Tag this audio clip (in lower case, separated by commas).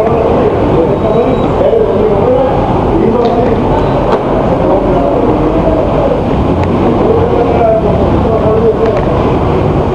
speech